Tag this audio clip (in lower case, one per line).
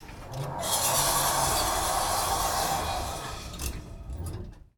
door
sliding door
domestic sounds